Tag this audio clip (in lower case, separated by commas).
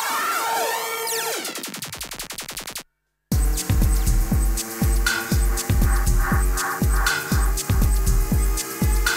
music